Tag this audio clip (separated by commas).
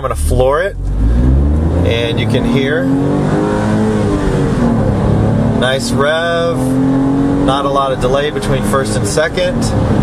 Speech